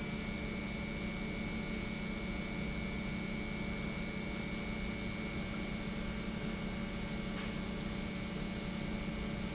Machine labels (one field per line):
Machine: pump